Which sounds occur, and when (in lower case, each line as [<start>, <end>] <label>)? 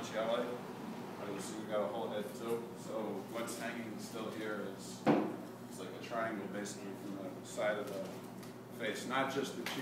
[0.00, 9.81] mechanisms
[0.03, 0.61] male speech
[1.23, 2.66] male speech
[2.80, 3.18] male speech
[3.35, 5.11] male speech
[5.07, 5.29] tap
[5.75, 8.15] male speech
[7.85, 8.25] generic impact sounds
[8.39, 8.54] generic impact sounds
[8.75, 9.81] male speech
[9.65, 9.78] tick